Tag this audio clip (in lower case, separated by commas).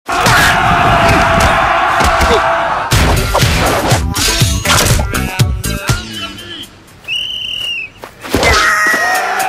music, speech